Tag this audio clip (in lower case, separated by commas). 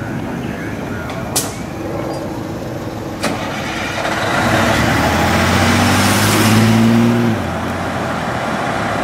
truck, car, engine starting, vehicle, revving